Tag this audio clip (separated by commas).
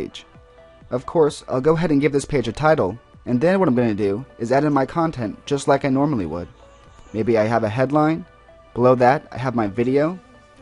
Speech, Music